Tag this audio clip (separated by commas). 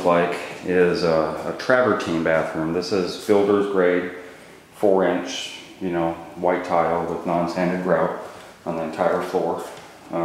Speech